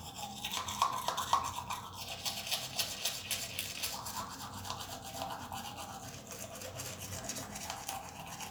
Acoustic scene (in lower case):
restroom